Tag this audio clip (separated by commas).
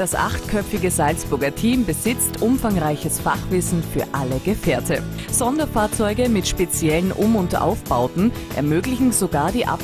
Music, Speech